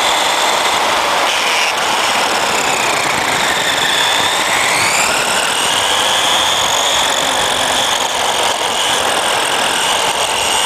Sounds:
car
vehicle
skidding
car passing by

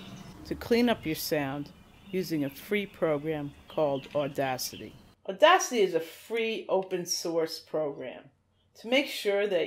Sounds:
speech

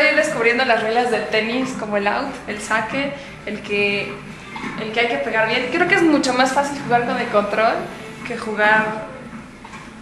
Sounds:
speech

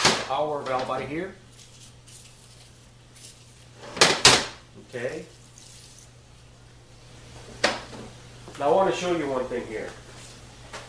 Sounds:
water

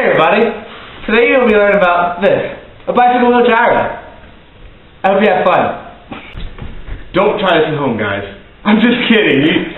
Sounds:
speech

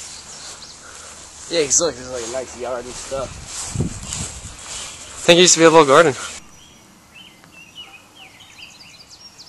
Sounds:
outside, rural or natural
bird call
environmental noise
speech

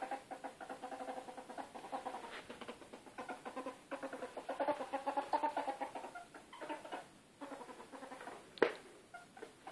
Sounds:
ferret dooking

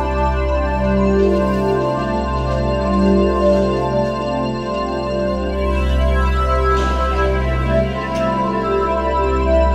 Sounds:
music

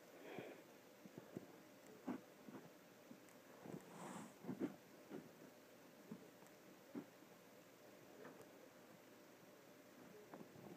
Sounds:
inside a small room

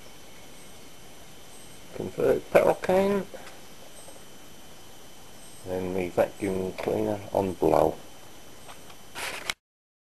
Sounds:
speech

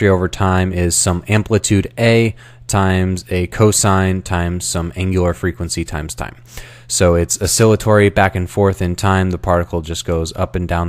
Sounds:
speech

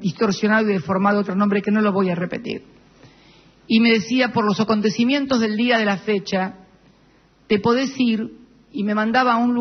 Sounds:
speech

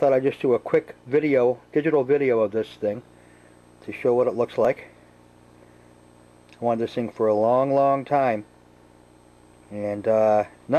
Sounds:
speech

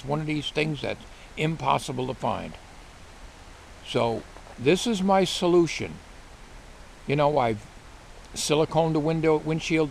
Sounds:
speech

